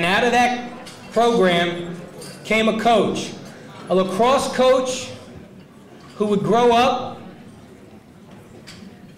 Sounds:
Speech, man speaking

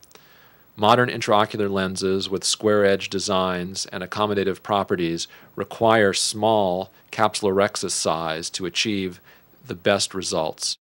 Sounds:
Speech

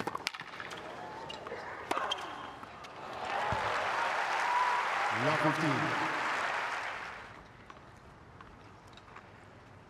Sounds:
playing tennis

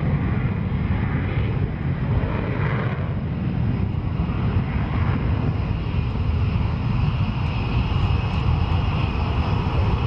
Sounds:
tornado roaring

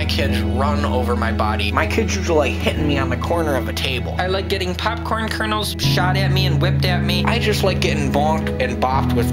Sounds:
Music, Speech

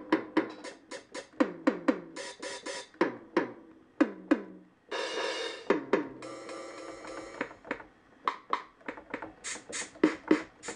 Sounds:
Musical instrument, Drum machine, Music

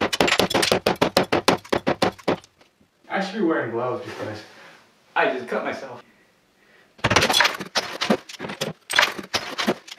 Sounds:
Speech

